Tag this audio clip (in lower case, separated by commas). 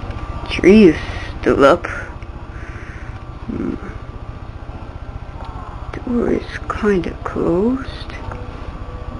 speech